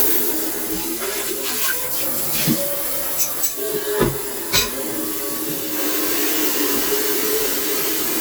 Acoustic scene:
kitchen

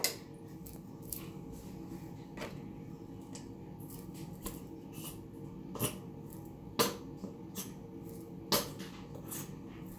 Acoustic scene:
restroom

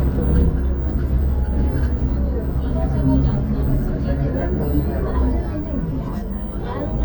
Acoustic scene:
bus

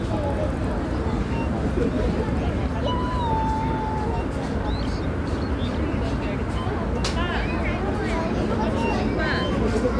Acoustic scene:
residential area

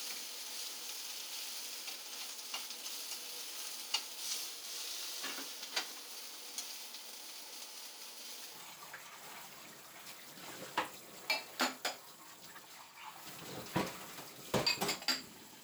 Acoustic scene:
kitchen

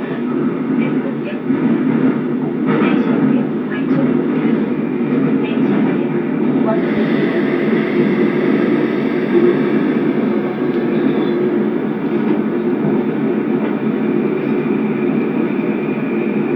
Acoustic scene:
subway train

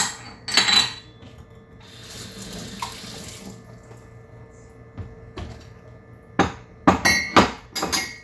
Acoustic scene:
kitchen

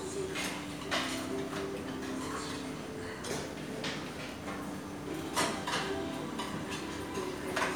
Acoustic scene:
restaurant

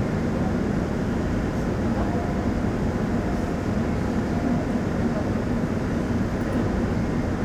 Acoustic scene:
subway train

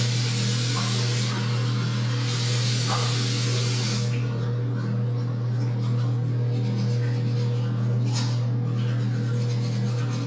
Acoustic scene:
restroom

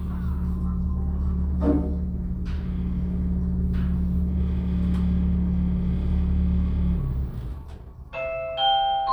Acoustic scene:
elevator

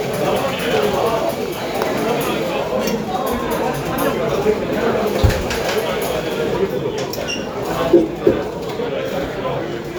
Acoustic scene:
cafe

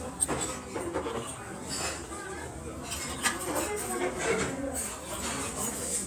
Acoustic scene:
restaurant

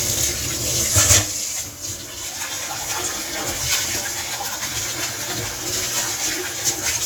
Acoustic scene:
kitchen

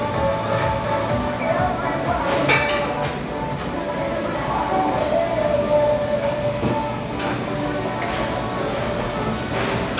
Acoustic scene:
restaurant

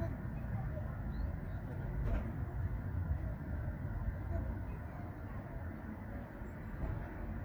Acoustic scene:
residential area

